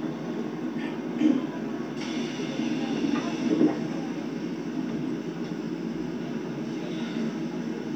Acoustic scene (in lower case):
subway train